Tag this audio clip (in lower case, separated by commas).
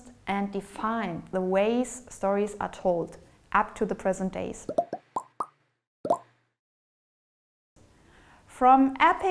plop, speech, inside a small room